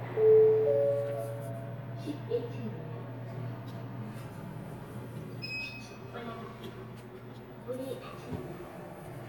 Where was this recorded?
in an elevator